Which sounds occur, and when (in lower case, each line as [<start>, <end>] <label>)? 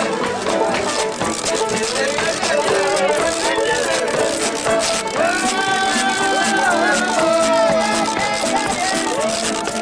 [0.00, 9.81] music
[0.00, 9.81] singing